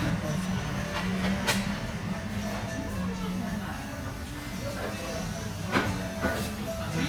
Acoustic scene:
restaurant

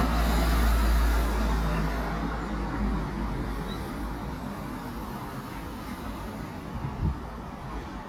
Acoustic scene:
residential area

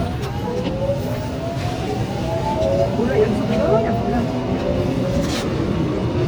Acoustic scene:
subway train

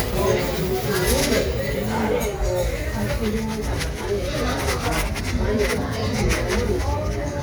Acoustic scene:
crowded indoor space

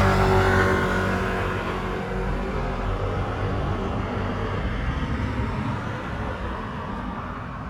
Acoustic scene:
street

